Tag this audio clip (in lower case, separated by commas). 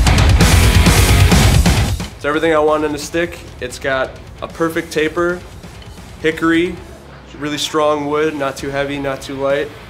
music, speech